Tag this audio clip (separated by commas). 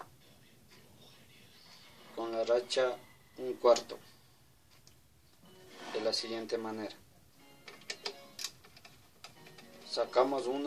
Music, Speech